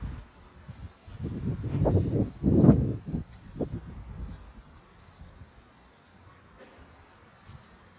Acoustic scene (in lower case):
street